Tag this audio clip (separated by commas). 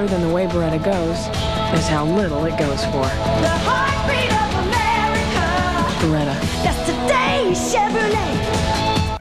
Music, Speech